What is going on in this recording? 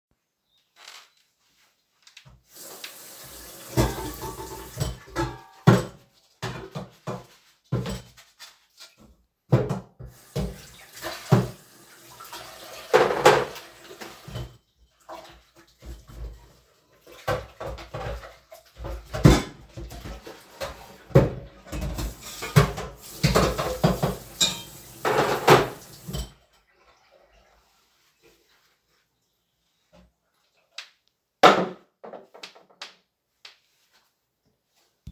I went into the kitchen and washed the dishes. Finally, an empty milk carton fell onto the floor.